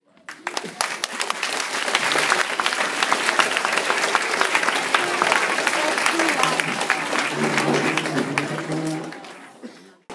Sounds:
Applause, Human group actions, Crowd

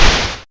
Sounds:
Explosion

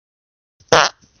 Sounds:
Fart

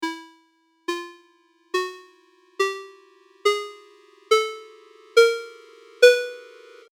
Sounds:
Ringtone, Telephone, Alarm

